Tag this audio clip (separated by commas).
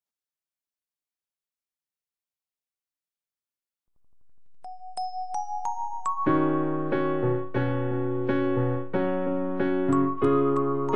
Piano, Keyboard (musical)